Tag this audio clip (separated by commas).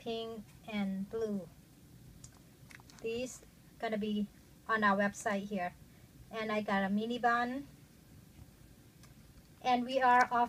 Speech